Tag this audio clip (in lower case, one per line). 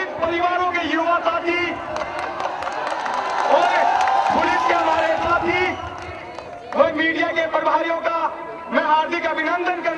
male speech
speech